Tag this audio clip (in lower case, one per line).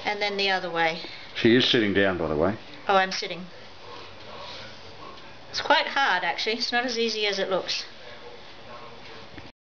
speech